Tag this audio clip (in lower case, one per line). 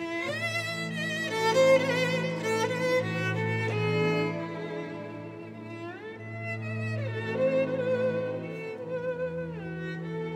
orchestra
music